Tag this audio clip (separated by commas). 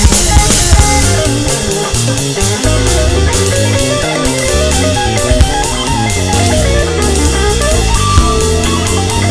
Plucked string instrument, Electric guitar, Music, Strum, Acoustic guitar, Guitar, Musical instrument